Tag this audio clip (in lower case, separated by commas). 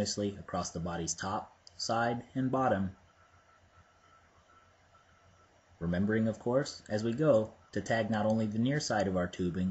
speech